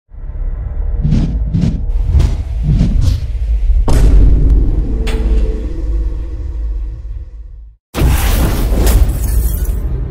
Loud whooshing sounds as glass breaks